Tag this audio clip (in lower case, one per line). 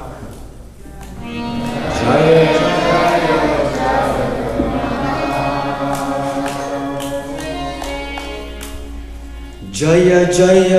music
male singing
speech
choir